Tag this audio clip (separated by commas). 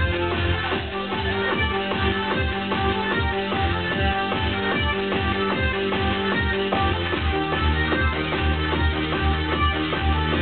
Music